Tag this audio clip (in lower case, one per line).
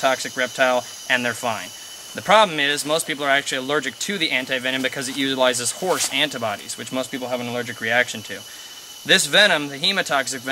speech
outside, rural or natural